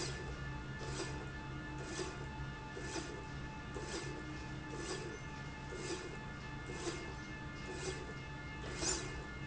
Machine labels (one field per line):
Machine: slide rail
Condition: normal